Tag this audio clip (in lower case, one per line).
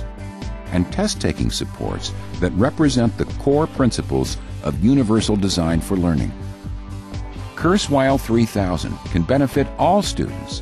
music
speech